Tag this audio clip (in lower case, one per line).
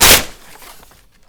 tearing